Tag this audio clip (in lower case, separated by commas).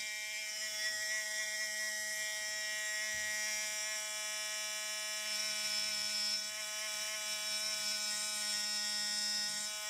inside a small room, electric toothbrush